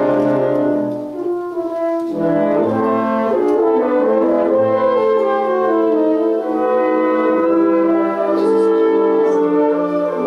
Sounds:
Music, French horn

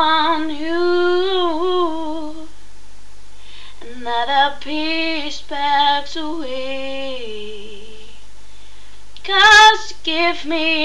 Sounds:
Female singing

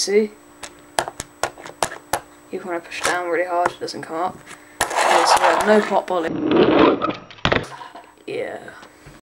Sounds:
Speech

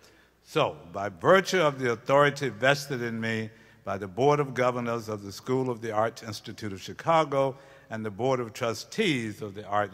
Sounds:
Speech, Male speech

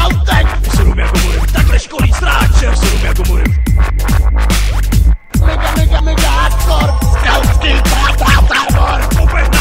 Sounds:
Dubstep, Music

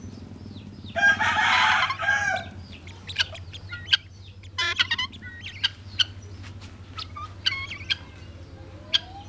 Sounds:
Fowl

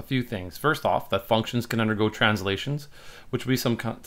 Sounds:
Speech

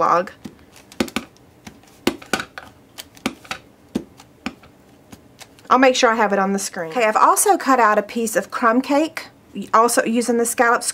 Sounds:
Speech

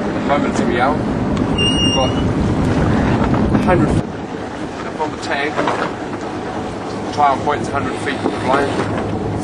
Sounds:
Ship, Speech, Ocean, Vehicle, Boat

